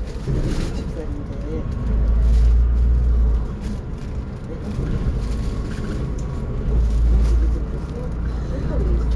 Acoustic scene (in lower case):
bus